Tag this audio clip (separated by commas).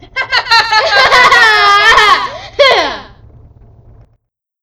Laughter, Human voice